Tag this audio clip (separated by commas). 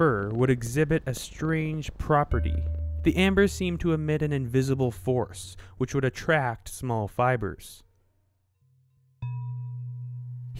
Speech